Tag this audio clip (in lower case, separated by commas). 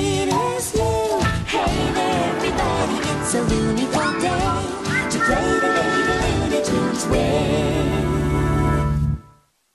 music